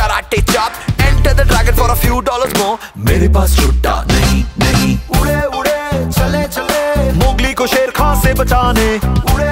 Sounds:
rapping

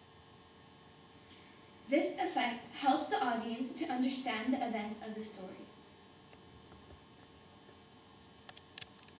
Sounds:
speech

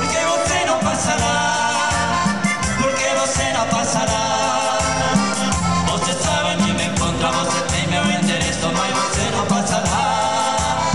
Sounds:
music

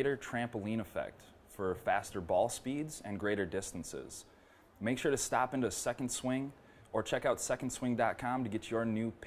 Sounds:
speech

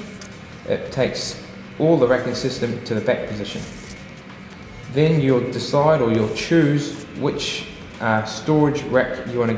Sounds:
speech
music

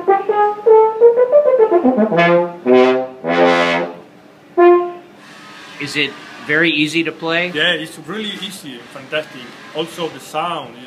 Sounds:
speech
music
brass instrument

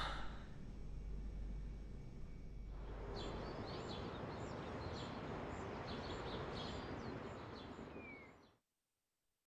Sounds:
bird
animal

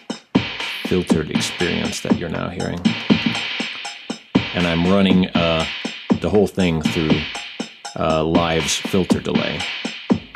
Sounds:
synthesizer
music
drum machine
speech

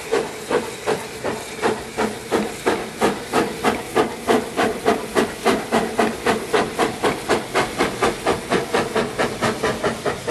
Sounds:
vehicle

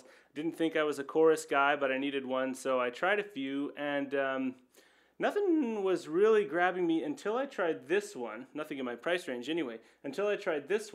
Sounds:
speech

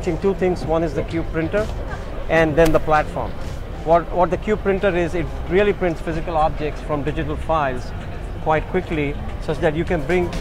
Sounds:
speech

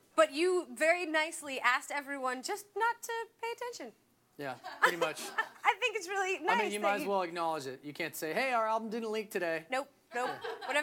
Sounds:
speech

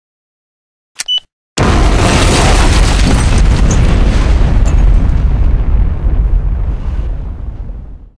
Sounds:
sound effect

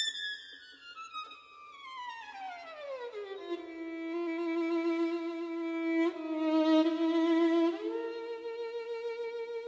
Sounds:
music
bowed string instrument

